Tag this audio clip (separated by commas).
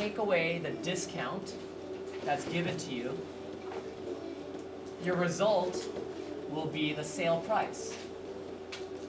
Speech, Music